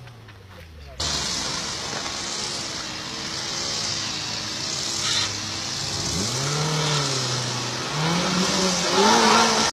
A motor vehicle engine is running and is revved up